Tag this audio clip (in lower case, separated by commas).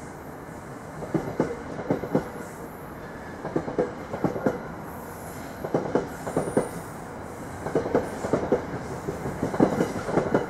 rail transport, vehicle, train, underground